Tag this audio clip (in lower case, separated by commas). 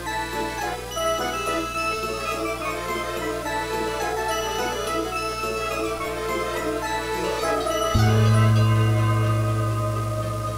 music, soundtrack music